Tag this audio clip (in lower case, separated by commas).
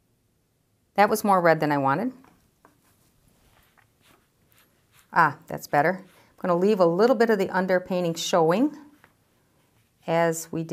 inside a small room, speech